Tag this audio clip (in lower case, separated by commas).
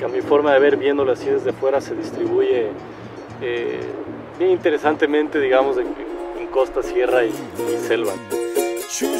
music, speech